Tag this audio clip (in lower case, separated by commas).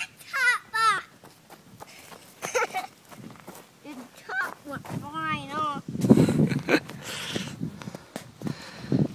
footsteps, speech